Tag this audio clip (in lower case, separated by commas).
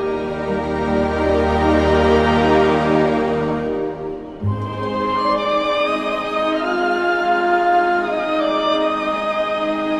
tender music, music